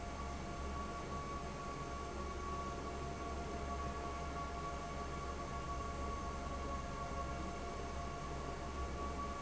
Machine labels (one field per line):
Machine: fan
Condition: abnormal